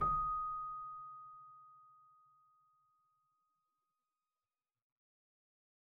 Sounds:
keyboard (musical)
music
musical instrument

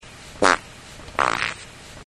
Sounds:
fart

